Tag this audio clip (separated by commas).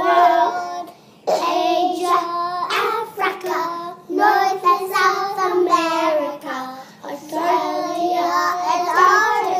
Child singing